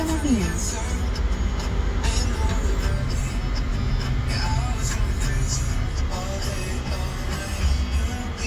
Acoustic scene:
car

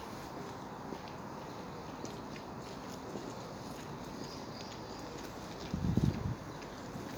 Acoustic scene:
park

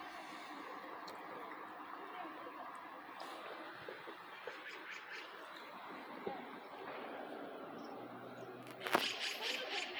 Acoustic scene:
residential area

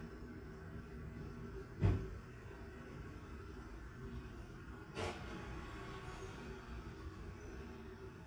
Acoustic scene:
residential area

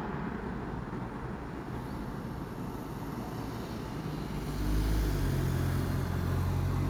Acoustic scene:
residential area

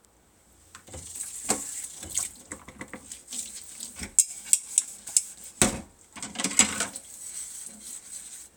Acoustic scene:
kitchen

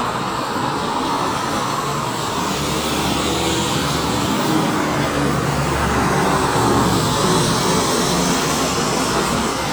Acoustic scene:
street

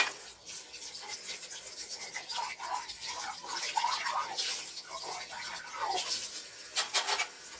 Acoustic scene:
kitchen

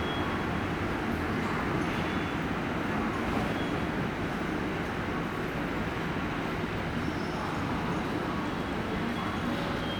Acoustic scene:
subway station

